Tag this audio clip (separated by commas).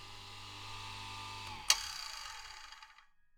Tools, Sawing